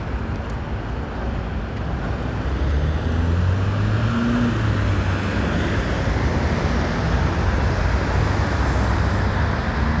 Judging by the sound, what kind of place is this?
street